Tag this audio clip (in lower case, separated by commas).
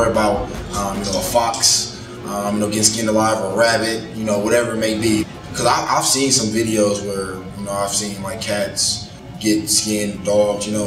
music, speech